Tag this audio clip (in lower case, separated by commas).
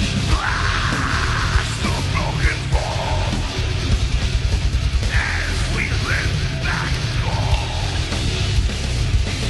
guitar, drum kit, heavy metal, musical instrument, rock music, music